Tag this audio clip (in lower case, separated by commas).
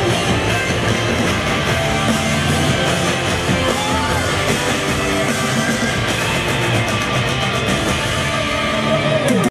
music